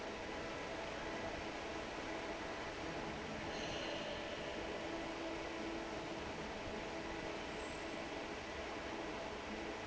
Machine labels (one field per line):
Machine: fan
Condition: normal